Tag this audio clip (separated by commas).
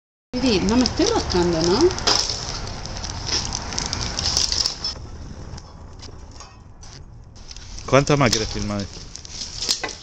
outside, rural or natural, Fire, Speech